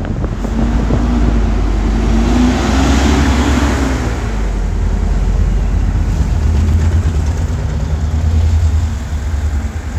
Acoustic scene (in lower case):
street